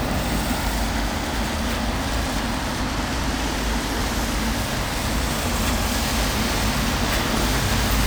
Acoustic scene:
street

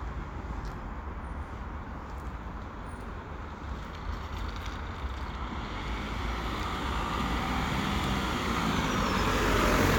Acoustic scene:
residential area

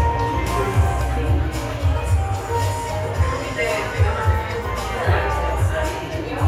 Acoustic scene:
cafe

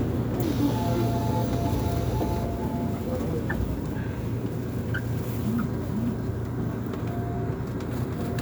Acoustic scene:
subway train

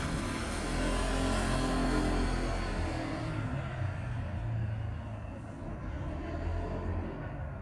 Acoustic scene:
residential area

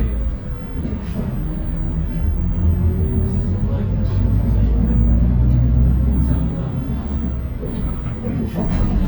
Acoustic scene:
bus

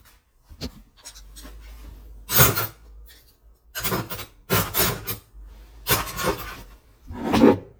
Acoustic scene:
kitchen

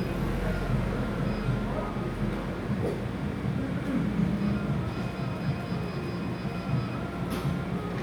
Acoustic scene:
cafe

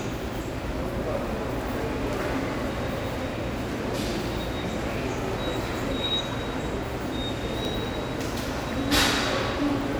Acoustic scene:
subway station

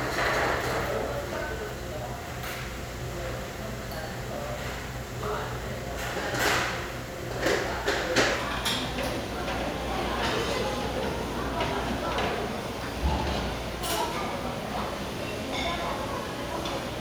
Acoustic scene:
restaurant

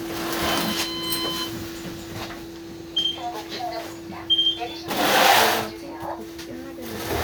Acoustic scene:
bus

